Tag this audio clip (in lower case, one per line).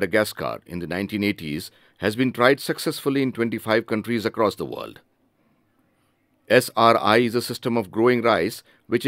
speech